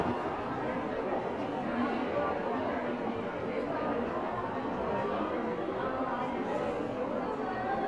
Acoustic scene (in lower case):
crowded indoor space